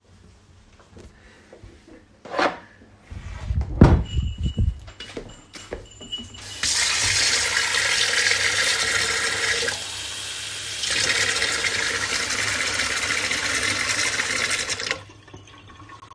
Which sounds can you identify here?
cutlery and dishes, wardrobe or drawer, bell ringing, footsteps, running water